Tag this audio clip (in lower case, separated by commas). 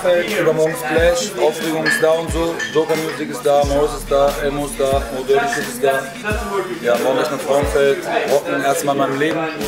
speech, music